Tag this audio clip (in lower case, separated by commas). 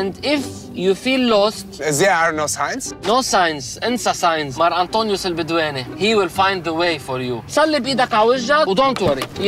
speech, music